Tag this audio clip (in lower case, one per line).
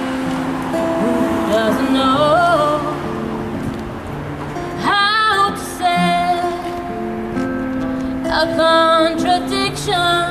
music